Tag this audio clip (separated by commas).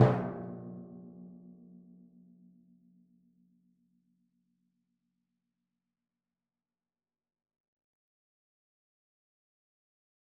Percussion, Music, Drum, Musical instrument